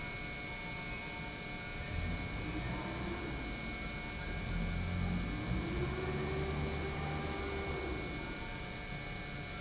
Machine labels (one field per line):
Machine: pump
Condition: normal